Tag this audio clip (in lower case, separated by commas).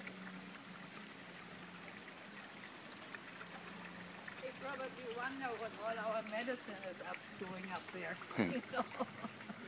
rustling leaves, speech